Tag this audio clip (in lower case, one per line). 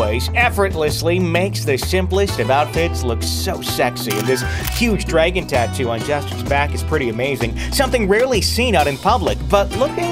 music
speech